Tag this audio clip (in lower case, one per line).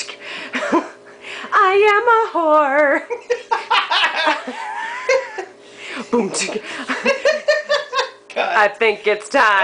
speech